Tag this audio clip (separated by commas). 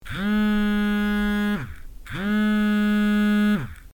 Alarm, Telephone